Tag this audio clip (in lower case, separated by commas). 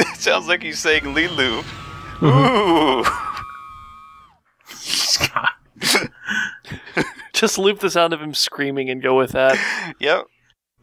speech, inside a small room